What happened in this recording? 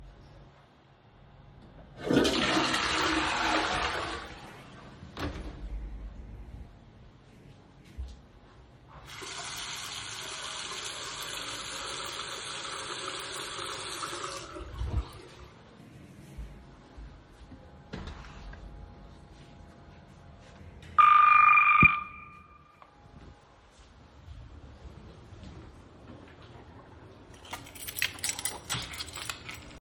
I flushed the toilet, then walked in the bathroom, turned on the water tab to washed my hands. While I walked out the bathroom the doorbell rang and I took out my keys.